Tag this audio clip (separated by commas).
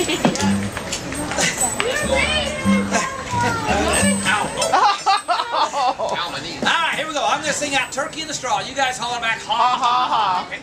Music, Speech